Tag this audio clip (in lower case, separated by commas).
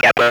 human voice, speech